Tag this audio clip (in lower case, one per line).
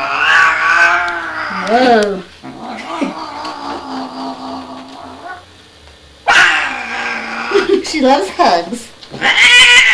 caterwaul
pets
animal
speech
cat